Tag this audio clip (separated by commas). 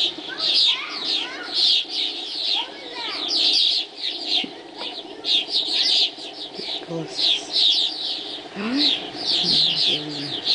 Speech, Bird